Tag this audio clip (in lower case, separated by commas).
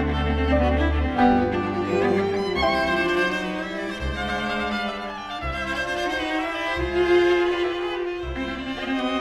musical instrument, music, bowed string instrument, orchestra, cello